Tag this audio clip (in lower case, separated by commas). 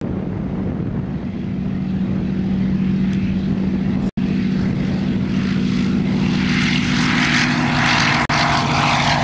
wind noise (microphone), vehicle, aircraft, fixed-wing aircraft